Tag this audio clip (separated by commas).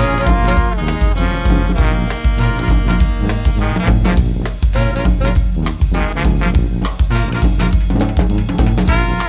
Music, Brass instrument, Musical instrument, Jazz